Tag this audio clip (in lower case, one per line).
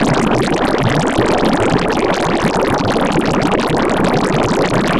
liquid